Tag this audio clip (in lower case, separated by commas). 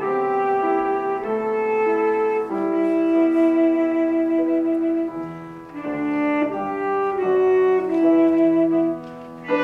brass instrument, saxophone